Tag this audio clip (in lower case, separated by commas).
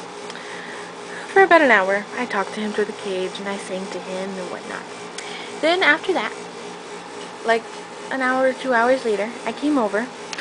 speech